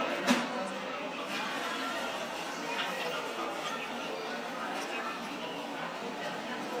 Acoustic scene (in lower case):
cafe